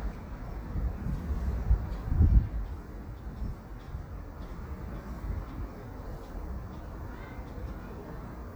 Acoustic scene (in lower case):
residential area